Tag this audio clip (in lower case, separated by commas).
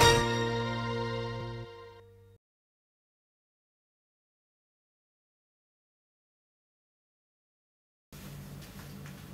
music, speech